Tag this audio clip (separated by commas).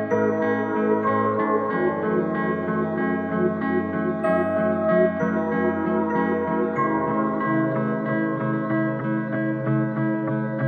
Music